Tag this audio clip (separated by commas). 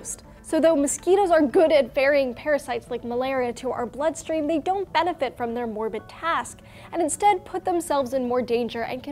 mosquito buzzing